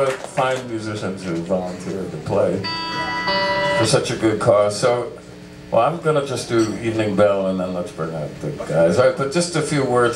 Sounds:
speech

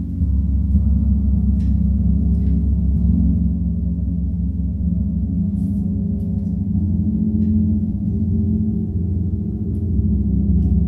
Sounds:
playing gong

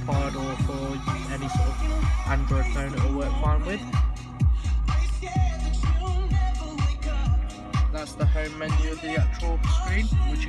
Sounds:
music, speech

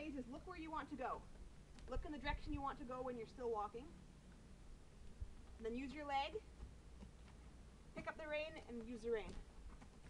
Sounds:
speech

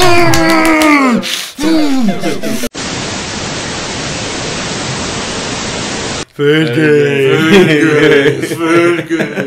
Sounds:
speech

